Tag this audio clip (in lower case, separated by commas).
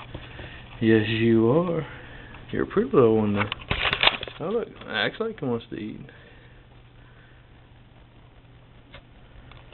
speech